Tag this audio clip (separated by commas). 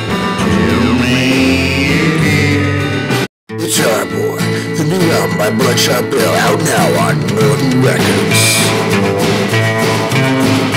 Musical instrument, Guitar, Speech, Music